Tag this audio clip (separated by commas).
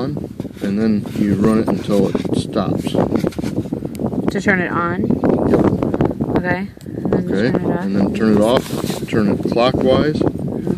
Speech